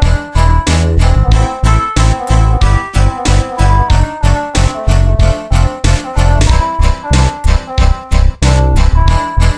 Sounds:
Music

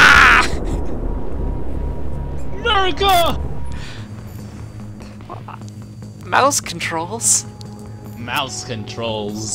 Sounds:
Music, Speech

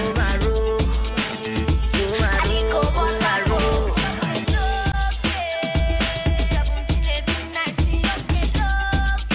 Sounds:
Music, Afrobeat

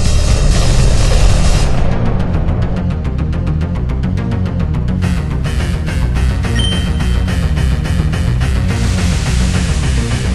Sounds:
Music

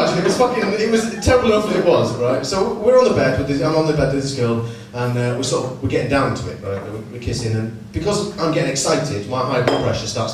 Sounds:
Speech

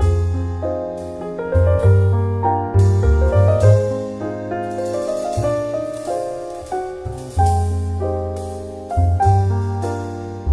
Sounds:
Music

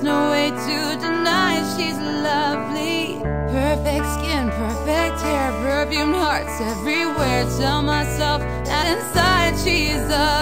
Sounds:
Music

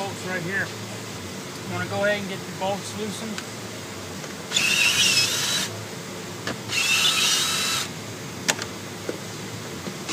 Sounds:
Vehicle, Speech

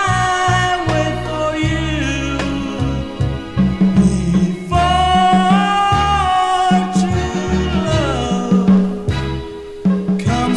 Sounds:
Music

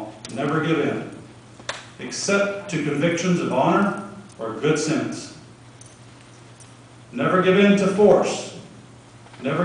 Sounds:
Male speech, monologue, Speech

